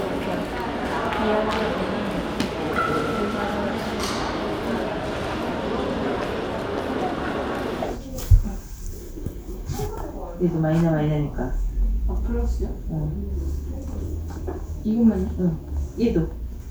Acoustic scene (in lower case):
crowded indoor space